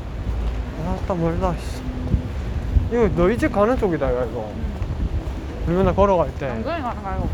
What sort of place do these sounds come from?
street